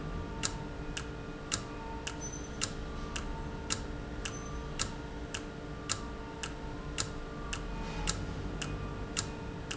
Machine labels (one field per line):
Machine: valve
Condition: normal